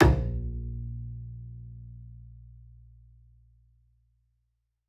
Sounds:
music
musical instrument
bowed string instrument

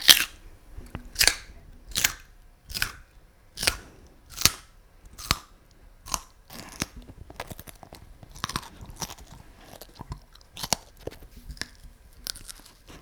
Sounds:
mastication

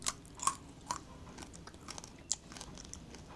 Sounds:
chewing

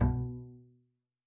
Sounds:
music
bowed string instrument
musical instrument

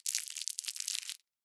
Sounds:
crinkling

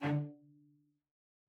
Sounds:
music
bowed string instrument
musical instrument

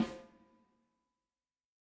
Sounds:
music
percussion
musical instrument
drum
snare drum

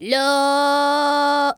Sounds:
singing
human voice
female singing

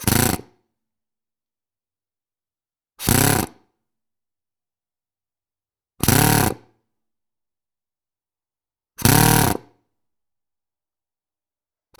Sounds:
power tool
drill
tools

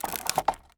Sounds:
wood

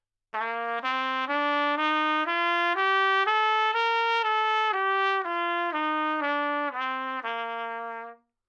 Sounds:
music
trumpet
brass instrument
musical instrument

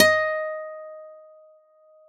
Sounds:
guitar
musical instrument
acoustic guitar
plucked string instrument
music

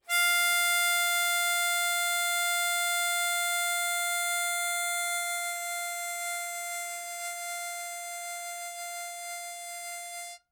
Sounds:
musical instrument
music
harmonica

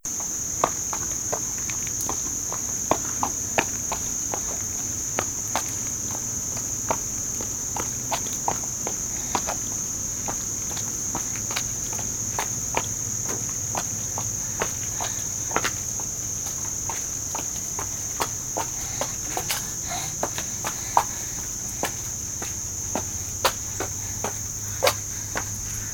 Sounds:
cricket
animal
wild animals
insect

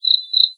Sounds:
bird
tweet
wild animals
bird vocalization
animal

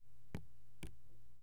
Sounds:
rain
raindrop
liquid
water
drip

